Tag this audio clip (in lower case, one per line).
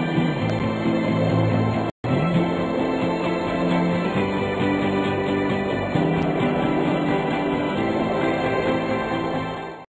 music